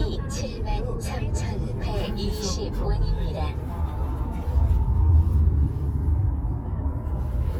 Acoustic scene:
car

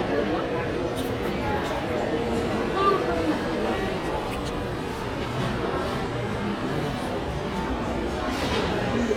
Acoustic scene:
crowded indoor space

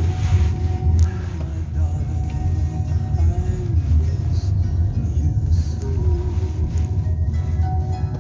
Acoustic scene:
car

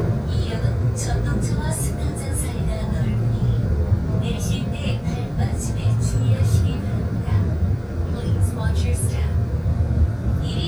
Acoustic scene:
subway train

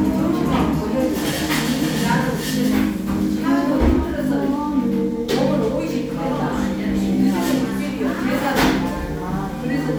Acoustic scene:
cafe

